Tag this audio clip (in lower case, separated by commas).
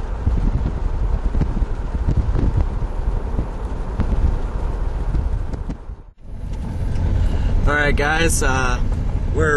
speech, outside, rural or natural